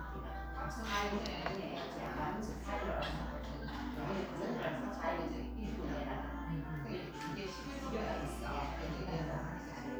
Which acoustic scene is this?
crowded indoor space